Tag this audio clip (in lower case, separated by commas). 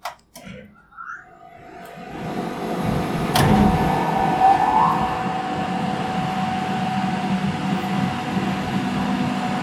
mechanisms